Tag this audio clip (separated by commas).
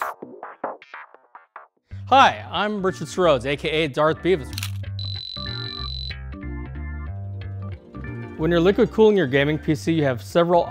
Speech, Music